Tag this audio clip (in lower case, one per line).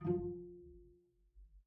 musical instrument
music
bowed string instrument